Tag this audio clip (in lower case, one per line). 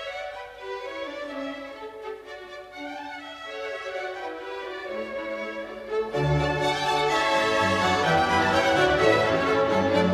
fiddle
bowed string instrument